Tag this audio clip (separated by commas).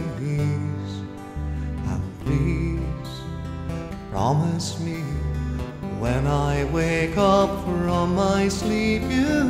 Music, Lullaby